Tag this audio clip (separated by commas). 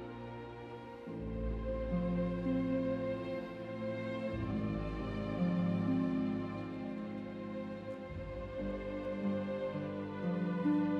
Music